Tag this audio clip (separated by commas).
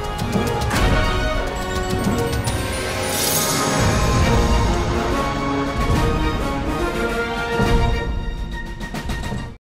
Music